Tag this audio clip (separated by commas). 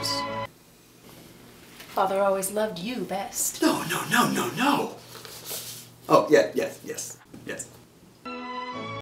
Music, Speech